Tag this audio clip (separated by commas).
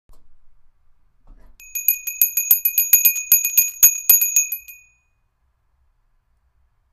Bell